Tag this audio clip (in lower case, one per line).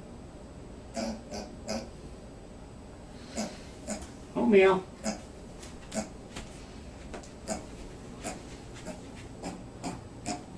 speech
oink